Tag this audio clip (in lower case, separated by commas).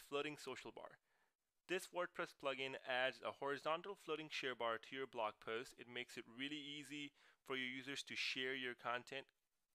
speech